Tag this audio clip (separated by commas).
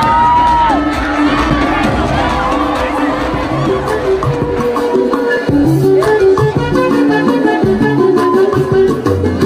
Crowd, Cheering